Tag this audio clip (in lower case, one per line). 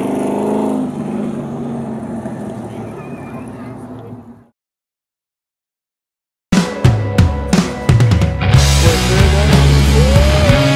vehicle
outside, urban or man-made
car
speech
music